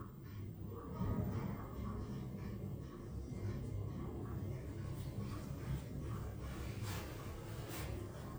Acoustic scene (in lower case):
elevator